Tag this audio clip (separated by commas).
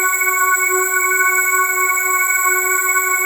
Organ, Music, Musical instrument, Keyboard (musical)